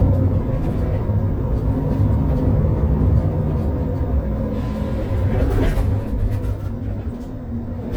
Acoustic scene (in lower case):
bus